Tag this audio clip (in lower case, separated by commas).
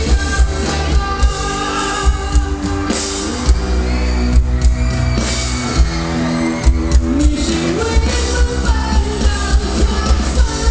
music